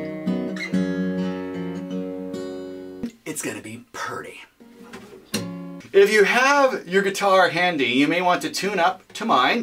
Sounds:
Acoustic guitar, Music, Speech, Musical instrument, Strum, Guitar

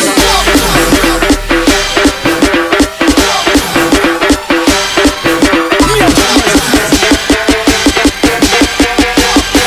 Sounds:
Music

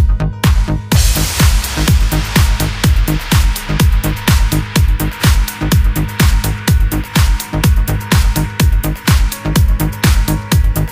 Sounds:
Music

